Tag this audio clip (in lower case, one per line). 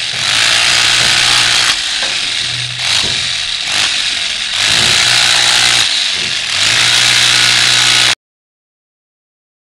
chainsaw